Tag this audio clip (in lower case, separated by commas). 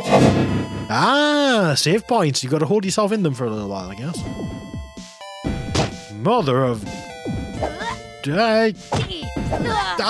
speech, music